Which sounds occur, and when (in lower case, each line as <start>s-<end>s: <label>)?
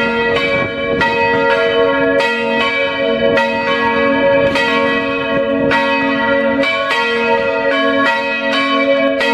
0.0s-9.3s: bell